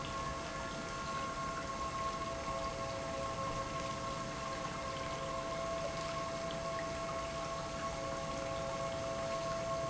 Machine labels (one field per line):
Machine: pump